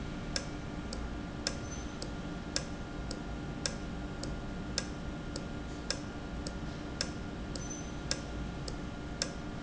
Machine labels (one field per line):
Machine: valve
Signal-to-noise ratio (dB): -6 dB